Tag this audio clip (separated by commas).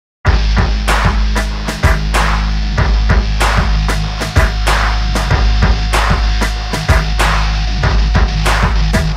Sampler, Music